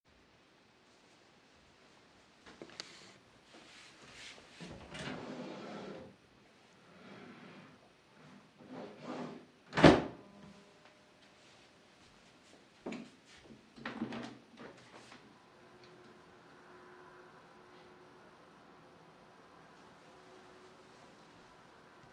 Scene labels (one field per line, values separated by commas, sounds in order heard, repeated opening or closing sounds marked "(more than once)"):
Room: living room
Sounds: wardrobe or drawer (more than once), footsteps, window